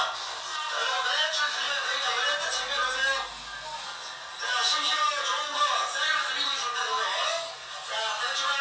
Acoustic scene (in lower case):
crowded indoor space